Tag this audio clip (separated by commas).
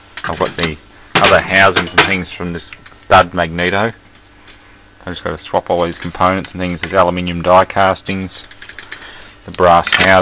Speech